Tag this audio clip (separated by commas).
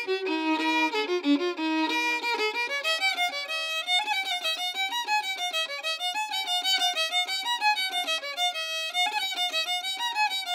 Violin, Music, Musical instrument